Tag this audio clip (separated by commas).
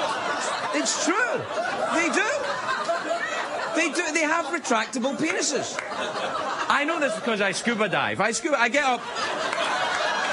Narration, Speech